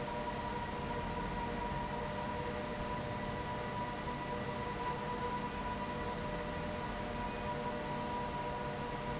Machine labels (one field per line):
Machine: fan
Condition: abnormal